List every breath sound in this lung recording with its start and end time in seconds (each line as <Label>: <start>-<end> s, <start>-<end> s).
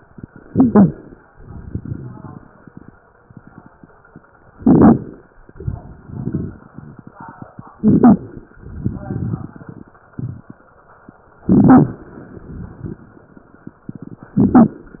Inhalation: 0.40-1.22 s, 4.55-5.20 s, 7.76-8.50 s, 11.44-12.12 s, 14.44-15.00 s
Exhalation: 1.31-2.96 s, 5.48-7.71 s, 8.54-10.59 s, 12.16-13.22 s
Crackles: 0.40-1.22 s, 1.31-2.96 s, 4.55-5.20 s, 5.48-7.71 s, 7.76-8.50 s, 8.54-10.59 s, 11.44-12.12 s, 12.16-13.22 s, 14.44-15.00 s